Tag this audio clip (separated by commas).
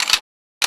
Tick